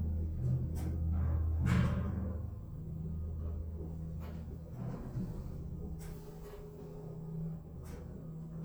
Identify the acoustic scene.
elevator